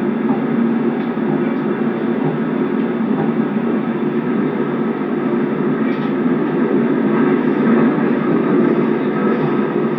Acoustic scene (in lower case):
subway train